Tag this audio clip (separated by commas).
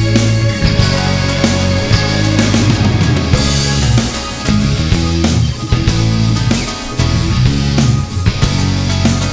Music